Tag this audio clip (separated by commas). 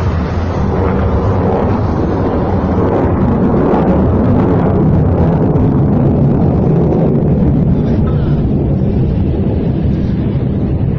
missile launch